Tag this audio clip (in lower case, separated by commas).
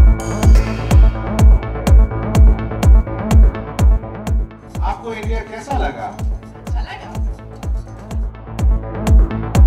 music, speech